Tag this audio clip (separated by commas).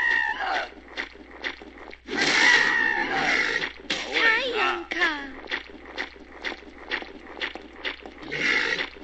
inside a small room, Speech